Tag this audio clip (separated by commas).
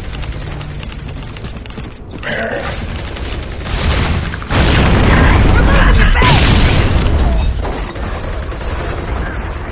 Speech